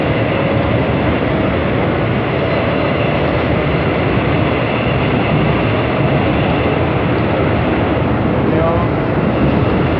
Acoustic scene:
subway train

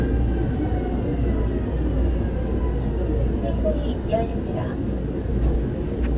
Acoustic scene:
subway train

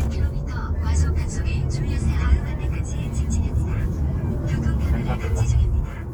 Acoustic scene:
car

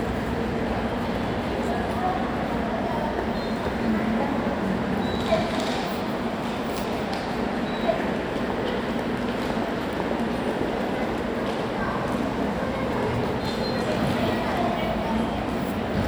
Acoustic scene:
subway station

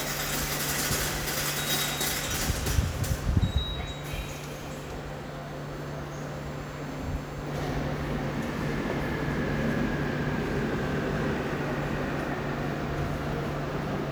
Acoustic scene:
subway station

